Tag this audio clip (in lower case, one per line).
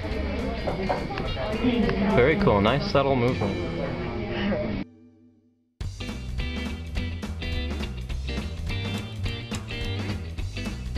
speech
music